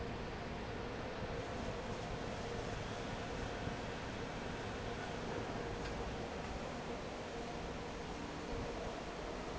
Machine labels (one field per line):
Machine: fan